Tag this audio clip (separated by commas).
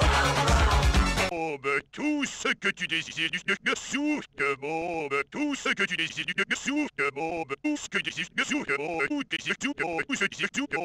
Music, Speech